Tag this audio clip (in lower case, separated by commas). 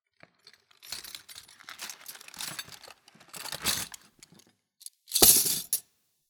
home sounds, silverware